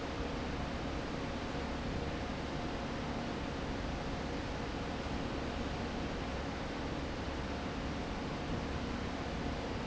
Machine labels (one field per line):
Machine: fan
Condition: abnormal